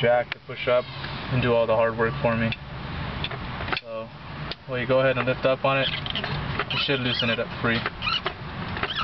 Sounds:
speech

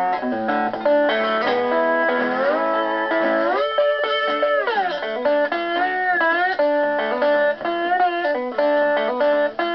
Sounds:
blues, music, acoustic guitar, musical instrument, guitar

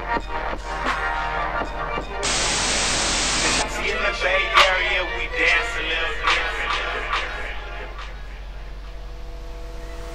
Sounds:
music, singing

